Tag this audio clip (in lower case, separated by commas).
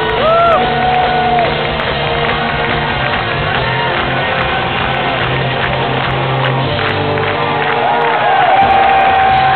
musical instrument, music, drum, drum kit